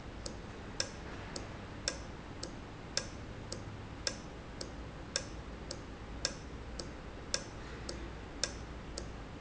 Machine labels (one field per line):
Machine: valve